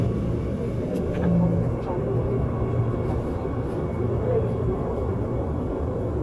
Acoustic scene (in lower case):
subway train